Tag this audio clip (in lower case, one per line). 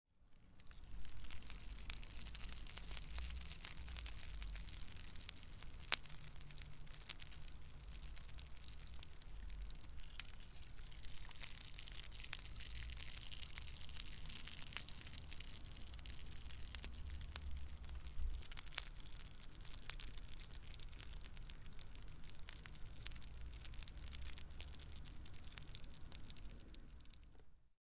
fire